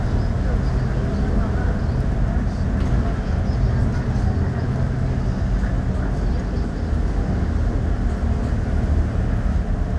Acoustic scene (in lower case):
bus